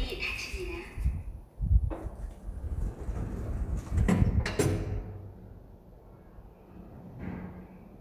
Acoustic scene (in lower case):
elevator